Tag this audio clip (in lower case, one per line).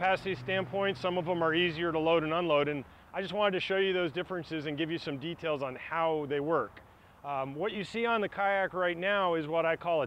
speech